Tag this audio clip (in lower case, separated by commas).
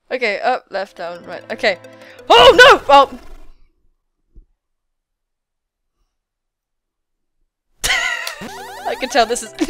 music, speech